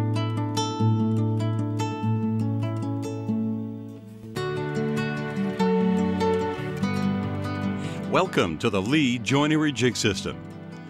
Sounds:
music, speech

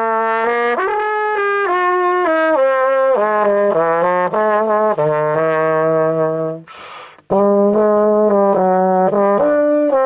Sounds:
music, trumpet

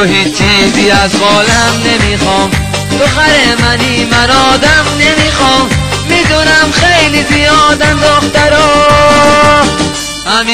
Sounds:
music

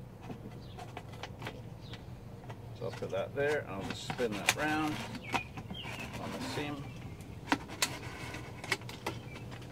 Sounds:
animal, speech

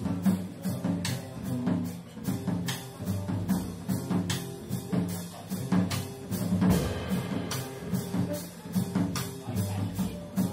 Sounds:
jazz, music

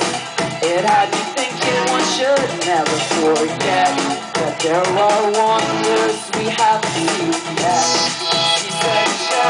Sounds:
music

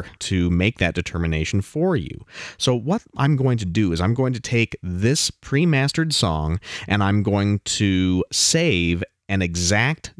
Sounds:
speech

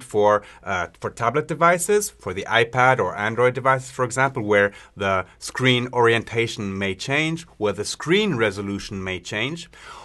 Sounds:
speech

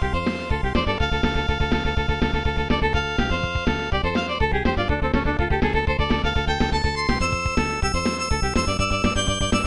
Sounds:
music

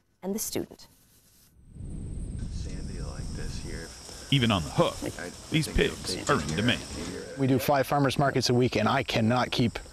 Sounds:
insect, cricket

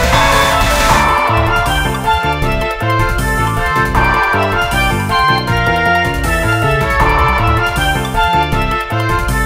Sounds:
music

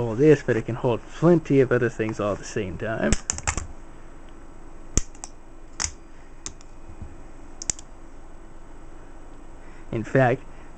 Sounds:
speech

